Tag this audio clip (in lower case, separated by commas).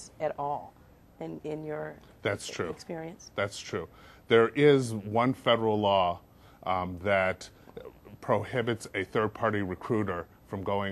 inside a large room or hall, speech